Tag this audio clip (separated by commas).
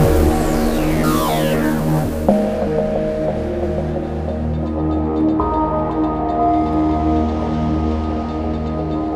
Music, Sound effect